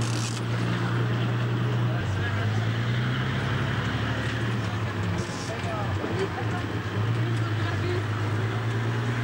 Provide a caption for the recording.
Vehicle engine and background chatter